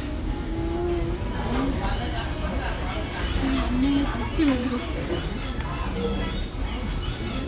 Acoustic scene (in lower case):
restaurant